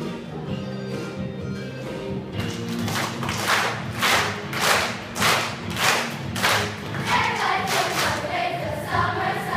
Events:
[0.00, 0.27] child speech
[0.00, 9.55] music
[2.31, 9.55] crowd
[2.78, 3.12] clapping
[3.22, 3.73] clapping
[3.90, 4.41] clapping
[4.51, 4.95] clapping
[5.14, 5.56] clapping
[5.68, 6.22] clapping
[6.29, 6.75] clapping
[6.95, 9.55] choir
[7.65, 8.17] clapping

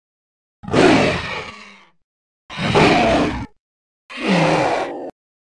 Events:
[0.58, 2.01] roar
[2.45, 3.54] roar
[4.05, 5.06] roar

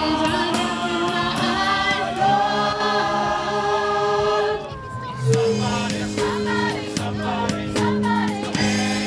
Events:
[0.00, 4.60] choir
[0.00, 4.60] music
[0.00, 9.05] wind
[4.62, 5.29] speech
[4.64, 5.32] human voice
[5.12, 9.05] music
[5.22, 9.05] choir

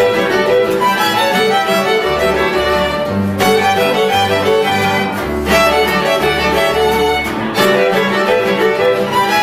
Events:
[0.00, 9.42] music

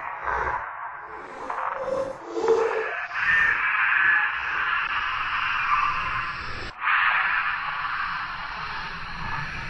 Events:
[0.00, 9.65] background noise
[0.00, 9.65] screaming
[0.23, 0.65] human voice
[1.45, 2.08] human voice
[2.29, 2.93] human voice

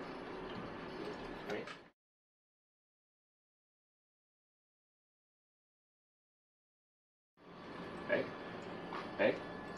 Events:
[0.00, 1.91] background noise
[1.39, 1.78] male speech
[7.35, 9.75] background noise
[8.00, 8.28] bark
[8.90, 9.34] bark

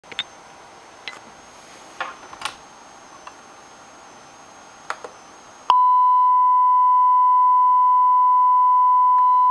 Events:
[0.01, 9.50] hubbub
[0.06, 0.21] generic impact sounds
[0.94, 1.23] generic impact sounds
[1.92, 2.51] generic impact sounds
[3.19, 3.30] generic impact sounds
[4.76, 5.05] generic impact sounds
[5.68, 9.50] beep

